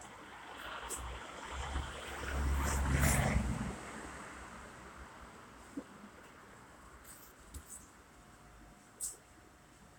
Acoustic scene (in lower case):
street